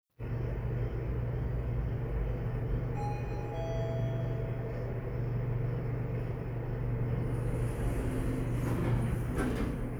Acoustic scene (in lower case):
elevator